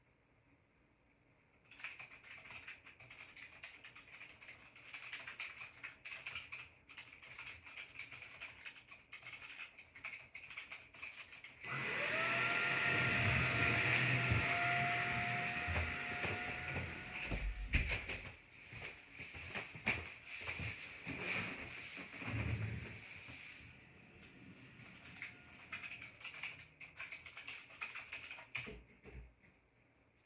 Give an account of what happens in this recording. During some writing on the computer, my mom turned on the vacuum cleaner and I stood up and closed the door to reduce the noise of it. Then I went back to my chair and sat down.